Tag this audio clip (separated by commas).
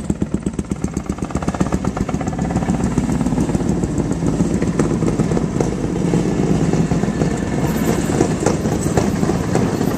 outside, urban or man-made, Railroad car, Vehicle